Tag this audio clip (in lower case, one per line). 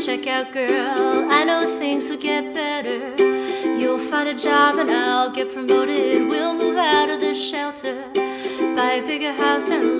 playing ukulele